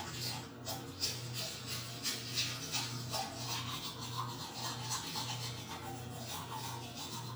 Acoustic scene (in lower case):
restroom